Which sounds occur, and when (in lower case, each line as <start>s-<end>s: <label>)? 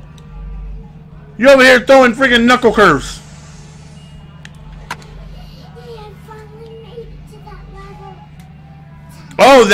0.0s-9.7s: mechanisms
0.1s-0.2s: tick
1.4s-9.7s: conversation
1.4s-3.2s: man speaking
3.3s-4.8s: speech
3.9s-4.4s: music
4.4s-4.6s: tick
4.9s-5.1s: tick
5.3s-8.8s: music
5.7s-8.3s: child speech
6.3s-6.4s: tick
6.6s-6.7s: tick
7.8s-9.4s: speech
8.4s-8.5s: tick
9.1s-9.3s: child speech
9.3s-9.3s: tick
9.4s-9.7s: man speaking